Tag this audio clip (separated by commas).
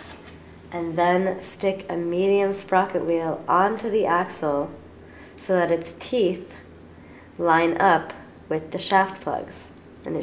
Speech